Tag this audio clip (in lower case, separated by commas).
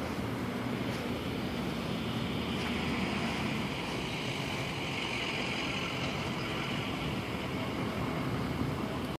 car passing by